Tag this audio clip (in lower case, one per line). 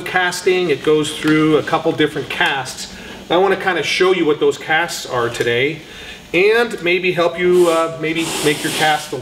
speech